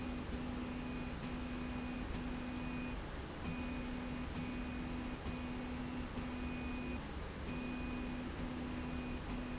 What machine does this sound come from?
slide rail